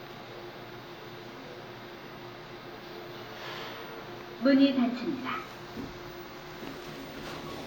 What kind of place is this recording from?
elevator